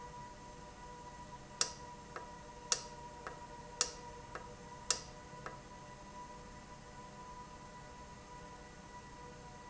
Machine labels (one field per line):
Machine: valve